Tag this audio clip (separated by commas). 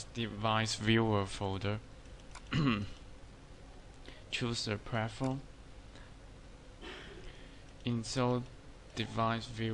Speech